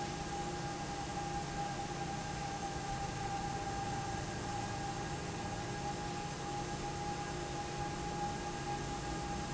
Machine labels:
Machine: fan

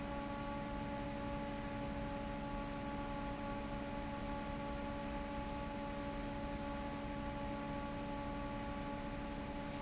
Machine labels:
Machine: fan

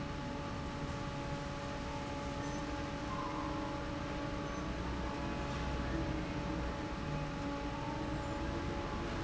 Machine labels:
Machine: fan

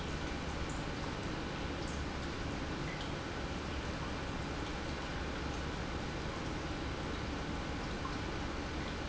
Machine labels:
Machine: pump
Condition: normal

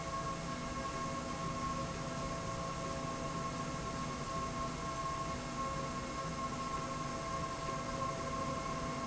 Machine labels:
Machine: slide rail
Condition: normal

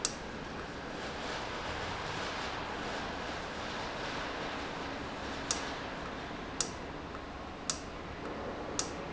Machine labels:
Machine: valve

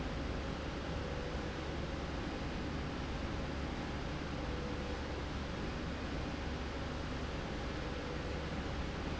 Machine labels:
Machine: slide rail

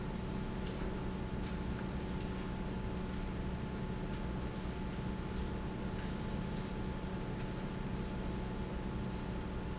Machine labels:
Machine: fan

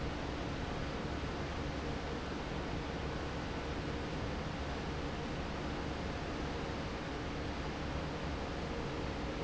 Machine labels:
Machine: fan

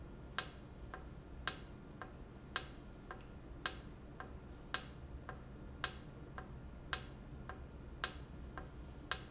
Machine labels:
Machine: valve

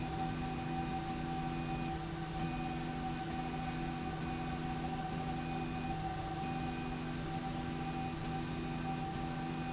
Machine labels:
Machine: slide rail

